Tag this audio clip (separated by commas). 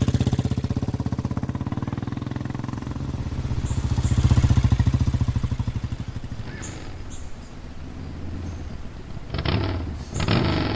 outside, rural or natural